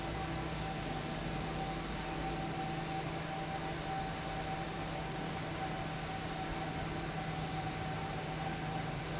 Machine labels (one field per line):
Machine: fan